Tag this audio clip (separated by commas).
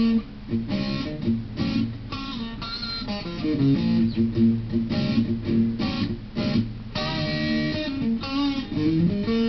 Electric guitar, Tapping (guitar technique), Music, Guitar, Blues